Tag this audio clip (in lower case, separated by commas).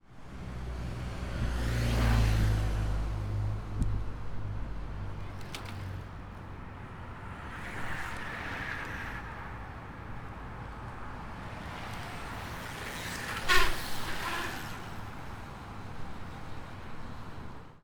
vehicle, bicycle, mechanisms